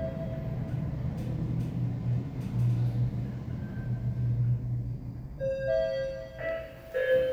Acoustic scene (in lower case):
elevator